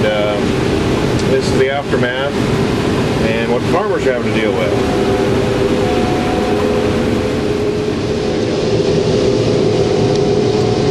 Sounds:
Speech, outside, rural or natural, Vehicle

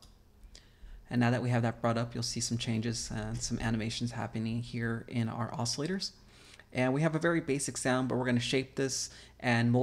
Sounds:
Speech

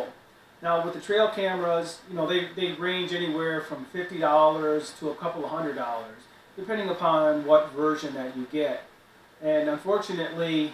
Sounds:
Speech

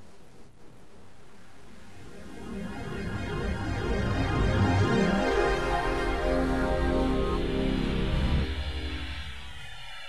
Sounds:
Sound effect, Music

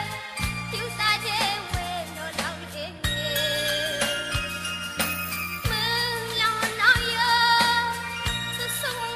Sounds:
Tender music, Music

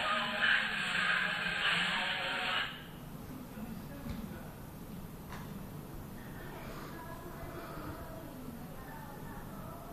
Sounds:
Radio, Music

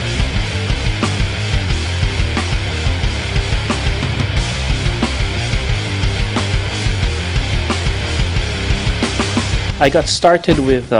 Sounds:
Music, Speech

